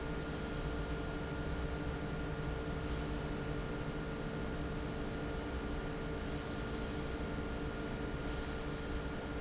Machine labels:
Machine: fan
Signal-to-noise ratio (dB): -6 dB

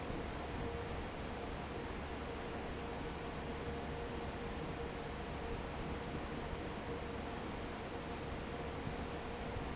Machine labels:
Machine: fan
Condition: normal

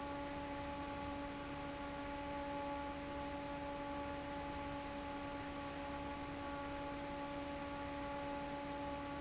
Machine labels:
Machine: fan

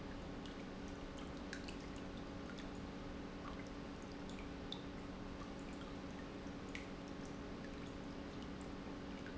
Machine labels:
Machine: pump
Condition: normal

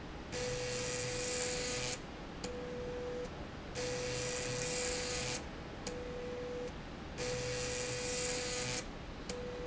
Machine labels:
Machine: slide rail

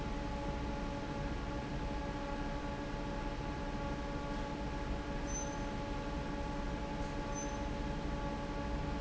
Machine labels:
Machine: fan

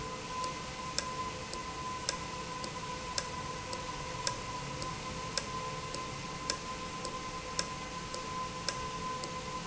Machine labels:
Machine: valve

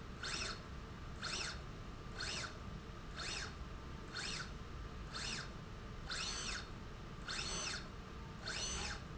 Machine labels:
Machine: slide rail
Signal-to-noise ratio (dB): 6 dB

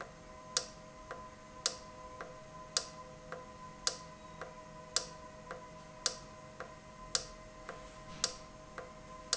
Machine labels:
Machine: valve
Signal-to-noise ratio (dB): 6 dB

